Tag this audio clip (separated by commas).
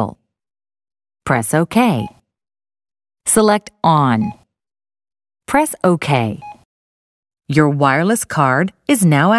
Speech